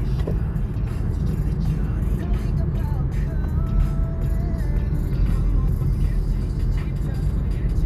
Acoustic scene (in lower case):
car